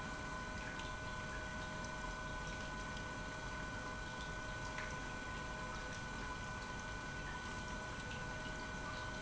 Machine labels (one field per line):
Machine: pump